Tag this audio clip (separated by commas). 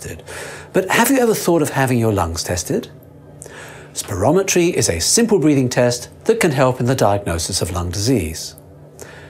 Speech